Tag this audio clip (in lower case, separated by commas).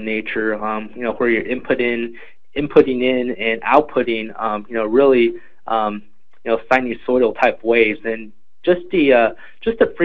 speech